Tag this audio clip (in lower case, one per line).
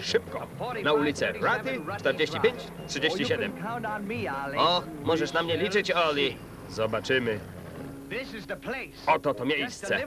speech